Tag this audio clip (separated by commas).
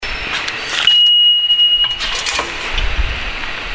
Rail transport, Subway, Vehicle